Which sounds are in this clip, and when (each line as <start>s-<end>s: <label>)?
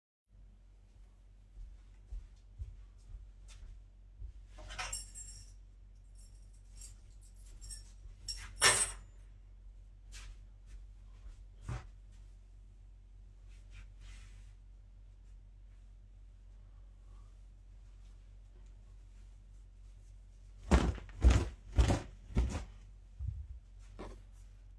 1.5s-4.4s: footsteps
4.6s-5.5s: keys
6.1s-9.1s: keys
10.1s-10.5s: footsteps